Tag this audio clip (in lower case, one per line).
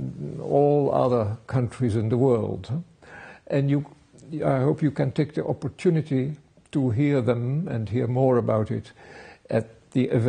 speech